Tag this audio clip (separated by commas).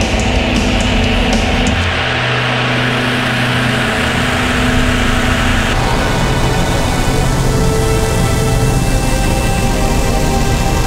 Music